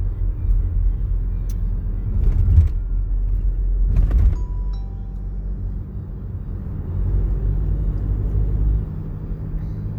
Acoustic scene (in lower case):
car